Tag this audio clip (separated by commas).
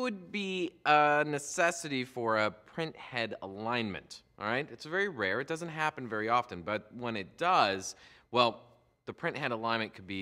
Speech